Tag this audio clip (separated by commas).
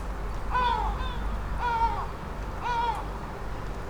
seagull, Animal, Wild animals, Bird